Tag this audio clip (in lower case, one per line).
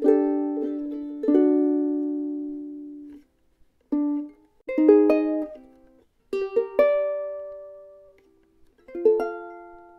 musical instrument
music
guitar
ukulele
plucked string instrument